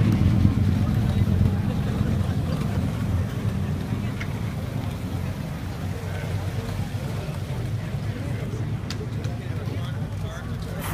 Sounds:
speech, car, vehicle

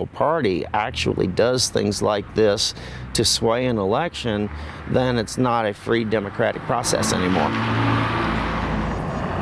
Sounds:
speech, outside, urban or man-made

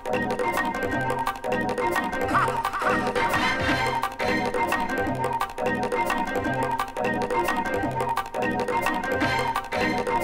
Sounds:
music, musical instrument

